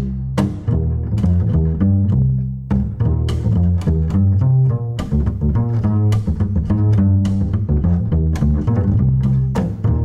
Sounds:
pizzicato, music

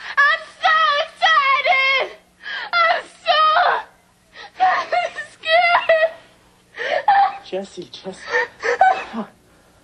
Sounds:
speech

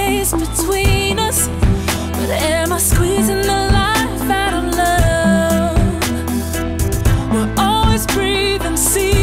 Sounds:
music

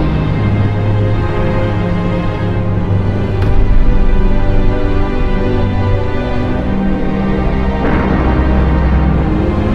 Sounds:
music

